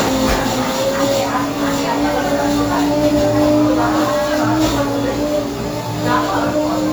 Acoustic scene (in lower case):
cafe